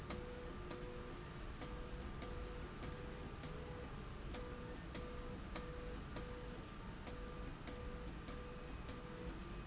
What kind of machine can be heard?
slide rail